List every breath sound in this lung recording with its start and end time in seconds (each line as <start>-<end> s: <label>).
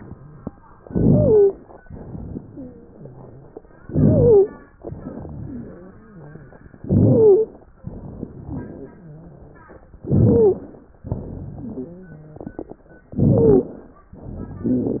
0.82-1.50 s: wheeze
0.82-1.78 s: inhalation
3.79-4.73 s: inhalation
3.85-4.54 s: wheeze
4.90-6.66 s: exhalation
4.90-6.66 s: wheeze
6.77-7.71 s: inhalation
6.83-7.53 s: wheeze
7.82-8.90 s: crackles
7.86-9.89 s: exhalation
8.90-9.89 s: rhonchi
10.00-10.70 s: wheeze
10.00-10.93 s: inhalation
11.08-11.97 s: exhalation
11.69-12.45 s: wheeze
13.17-13.81 s: wheeze
13.17-14.04 s: inhalation
14.18-15.00 s: exhalation